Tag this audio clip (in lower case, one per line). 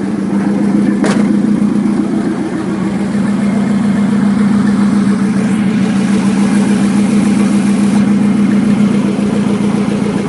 idling
vehicle
medium engine (mid frequency)
engine